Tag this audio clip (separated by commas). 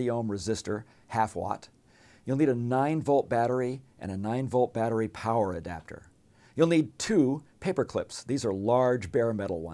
Speech